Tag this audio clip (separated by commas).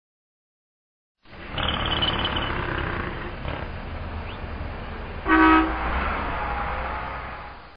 Sound effect